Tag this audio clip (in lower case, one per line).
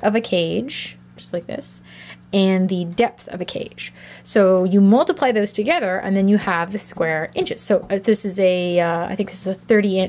speech